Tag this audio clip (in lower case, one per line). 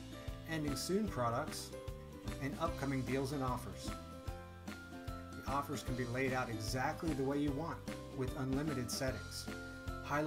music
speech